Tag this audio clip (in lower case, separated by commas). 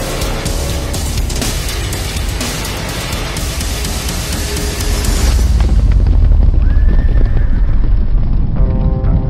sound effect, music